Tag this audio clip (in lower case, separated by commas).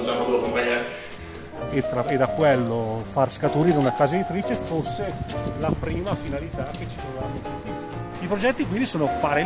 music, speech